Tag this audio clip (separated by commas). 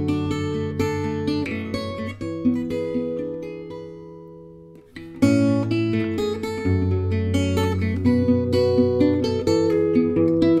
Music